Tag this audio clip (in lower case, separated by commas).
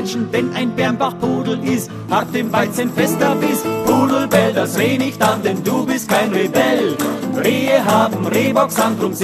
music